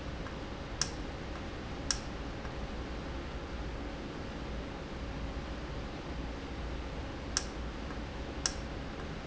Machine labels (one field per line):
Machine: valve